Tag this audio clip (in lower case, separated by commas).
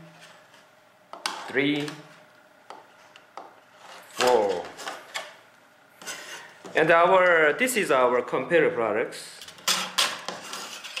speech